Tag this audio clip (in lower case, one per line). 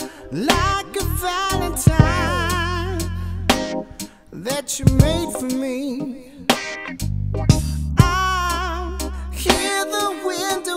rhythm and blues
music